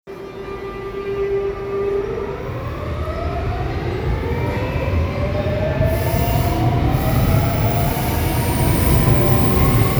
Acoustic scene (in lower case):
subway station